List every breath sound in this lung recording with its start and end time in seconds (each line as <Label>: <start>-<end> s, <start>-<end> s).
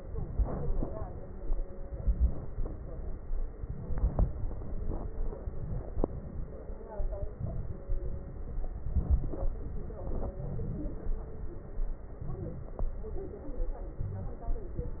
Inhalation: 0.30-1.14 s, 1.88-2.52 s, 3.57-4.27 s, 5.45-6.06 s, 7.37-7.88 s, 8.95-9.50 s, 10.39-11.04 s, 12.22-12.85 s, 13.98-14.50 s
Exhalation: 2.52-3.23 s, 4.27-5.11 s, 6.06-6.59 s, 7.88-8.57 s, 9.52-10.07 s, 11.04-11.67 s, 12.85-13.49 s, 14.50-15.00 s